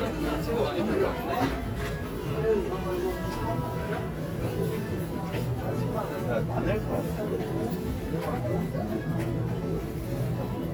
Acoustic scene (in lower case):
crowded indoor space